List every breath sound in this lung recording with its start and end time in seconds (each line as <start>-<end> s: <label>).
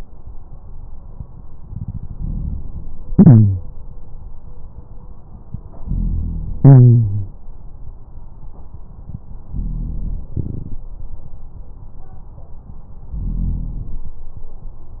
1.57-2.81 s: inhalation
3.08-3.70 s: exhalation
5.77-6.59 s: inhalation
6.59-7.34 s: exhalation
9.53-10.30 s: inhalation
10.31-10.86 s: exhalation
13.19-13.99 s: inhalation